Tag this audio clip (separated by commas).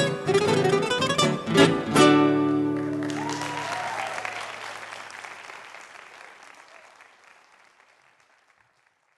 Music, Plucked string instrument, Musical instrument, Guitar